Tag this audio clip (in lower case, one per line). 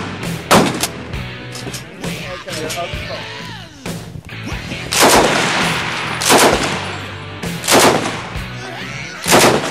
machine gun shooting